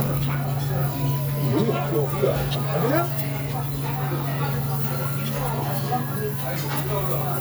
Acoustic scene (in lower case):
restaurant